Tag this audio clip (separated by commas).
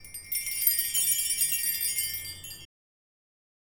Chime, Bell